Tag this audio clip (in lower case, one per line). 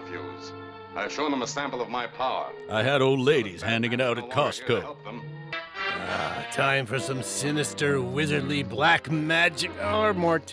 speech
music